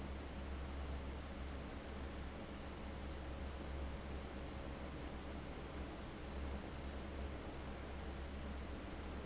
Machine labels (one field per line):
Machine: fan